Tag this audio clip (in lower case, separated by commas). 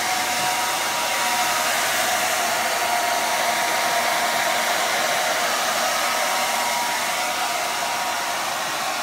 hair dryer